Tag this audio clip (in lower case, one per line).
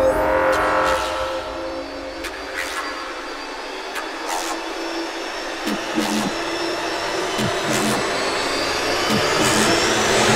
electronic music
music
dubstep